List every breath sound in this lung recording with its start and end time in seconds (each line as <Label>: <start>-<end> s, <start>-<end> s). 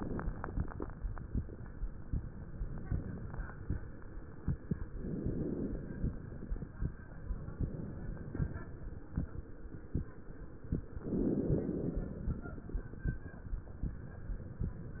Inhalation: 0.00-0.80 s, 4.89-6.72 s, 11.08-12.90 s
Exhalation: 7.57-8.67 s
Crackles: 0.00-0.80 s, 4.89-6.72 s, 11.08-12.90 s